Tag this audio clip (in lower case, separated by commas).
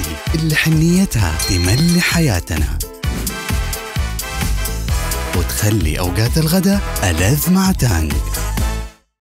speech, music